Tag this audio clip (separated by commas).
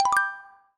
Music, xylophone, Percussion, Mallet percussion, Musical instrument